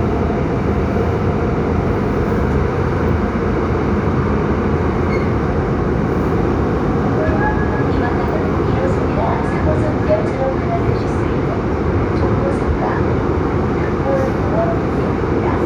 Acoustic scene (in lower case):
subway train